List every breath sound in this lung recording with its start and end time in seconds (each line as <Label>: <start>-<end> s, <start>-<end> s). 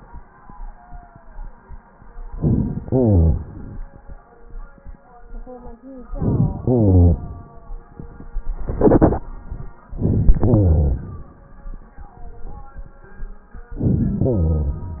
Inhalation: 2.35-2.85 s, 6.07-6.62 s, 9.91-10.34 s, 13.76-14.22 s
Exhalation: 2.86-4.18 s, 6.61-7.83 s, 10.31-11.50 s, 14.22-15.00 s